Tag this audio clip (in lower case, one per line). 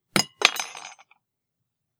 clink
cutlery
home sounds
glass